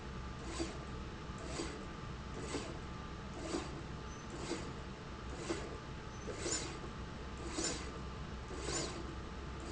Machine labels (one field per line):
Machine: slide rail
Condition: abnormal